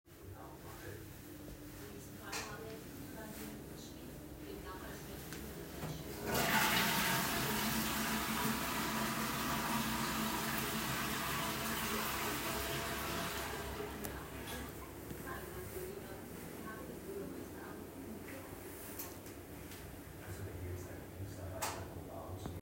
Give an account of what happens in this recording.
Flushing the toilet before turning off the light, with distant TV mumble in the background.